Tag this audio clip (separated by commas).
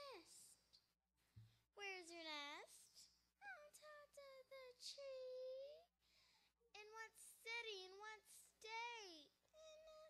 Speech, Child speech